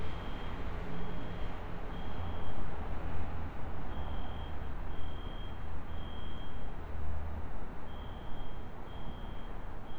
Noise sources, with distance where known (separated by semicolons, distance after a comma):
unidentified alert signal